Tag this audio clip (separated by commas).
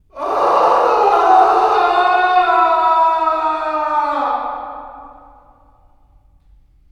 Screaming, Shout, Human voice, Yell